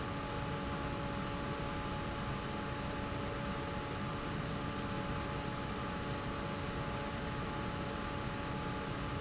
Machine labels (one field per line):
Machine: fan